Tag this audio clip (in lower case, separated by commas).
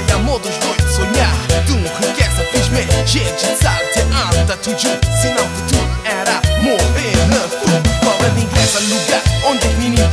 music of latin america, music